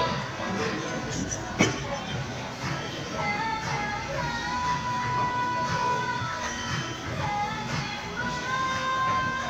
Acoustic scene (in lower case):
crowded indoor space